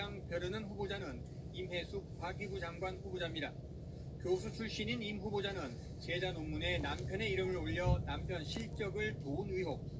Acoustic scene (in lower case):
car